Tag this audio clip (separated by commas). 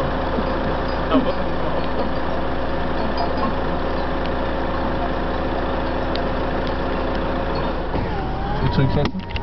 Speech